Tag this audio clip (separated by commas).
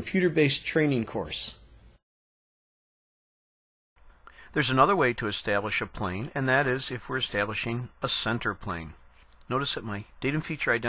Speech